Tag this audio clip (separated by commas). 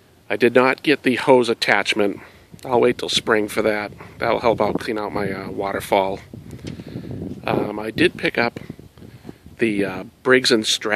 Speech